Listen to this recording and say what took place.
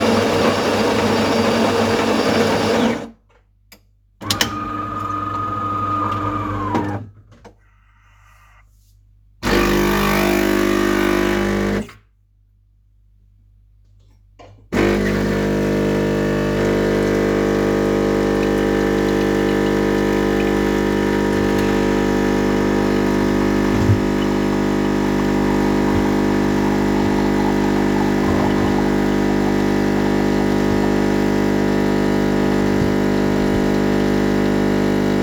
I was waiting for my coffee, while the coffee machine was brewing